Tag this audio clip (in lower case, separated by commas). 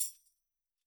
music, percussion, tambourine, musical instrument